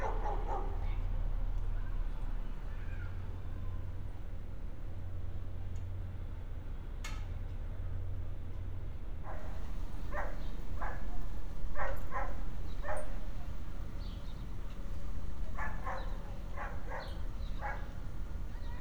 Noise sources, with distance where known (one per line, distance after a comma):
dog barking or whining